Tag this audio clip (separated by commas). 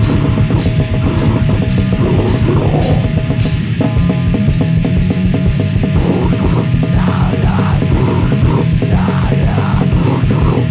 Hum, Throbbing